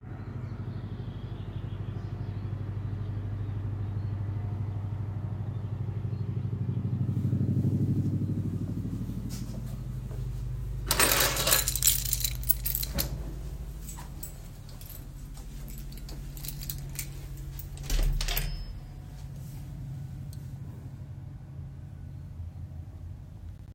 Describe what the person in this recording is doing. I heard a helicopter and birds outside the open window. I walked to the table, grabbed my keys, and went to the door and opened the door.